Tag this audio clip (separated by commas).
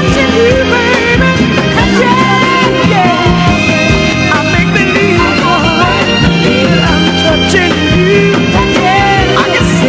Music